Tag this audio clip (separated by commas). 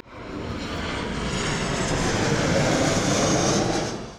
Fixed-wing aircraft, Aircraft, Vehicle